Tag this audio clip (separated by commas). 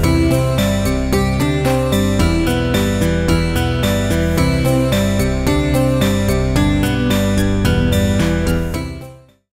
Music